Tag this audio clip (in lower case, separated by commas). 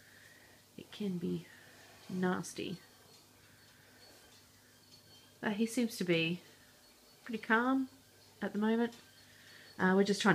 inside a small room, speech